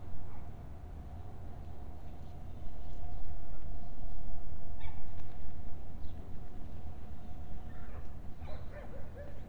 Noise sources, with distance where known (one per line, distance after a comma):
dog barking or whining, far